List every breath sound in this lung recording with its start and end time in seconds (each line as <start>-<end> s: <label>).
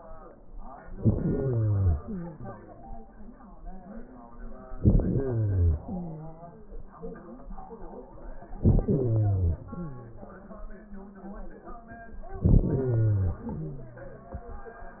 0.89-2.03 s: inhalation
1.99-2.92 s: exhalation
4.78-5.84 s: inhalation
5.83-6.64 s: exhalation
8.58-9.59 s: inhalation
9.60-10.37 s: exhalation
12.37-13.41 s: inhalation
13.40-14.34 s: exhalation